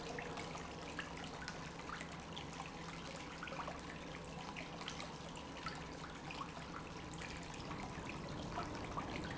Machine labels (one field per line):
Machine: pump